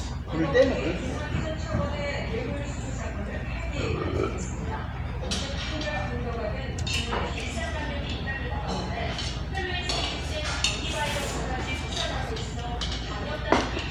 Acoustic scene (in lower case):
restaurant